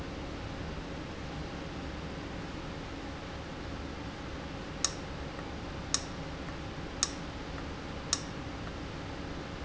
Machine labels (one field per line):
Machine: valve